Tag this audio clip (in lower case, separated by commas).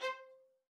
music, musical instrument, bowed string instrument